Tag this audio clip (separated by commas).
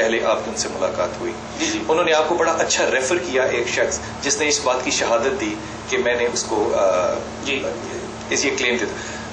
Speech